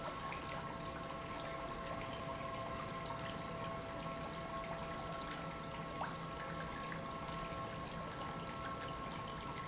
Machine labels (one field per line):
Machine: pump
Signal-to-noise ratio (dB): 0 dB